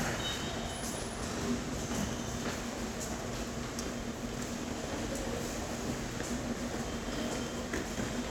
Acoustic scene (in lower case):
subway station